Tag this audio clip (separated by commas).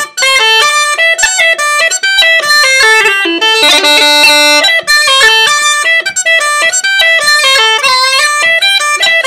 woodwind instrument, Musical instrument, Music